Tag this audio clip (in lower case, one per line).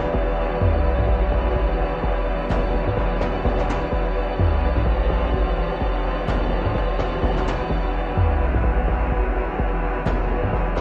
music